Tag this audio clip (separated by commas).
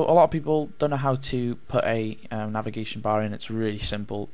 Speech